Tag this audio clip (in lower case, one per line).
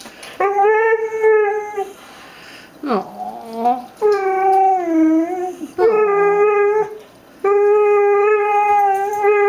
speech
yip